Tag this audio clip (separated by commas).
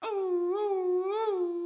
Animal, Dog, pets